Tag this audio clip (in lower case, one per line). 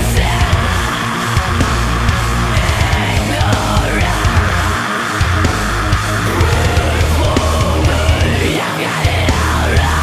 music